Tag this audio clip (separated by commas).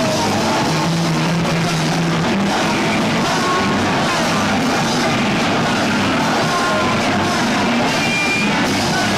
Music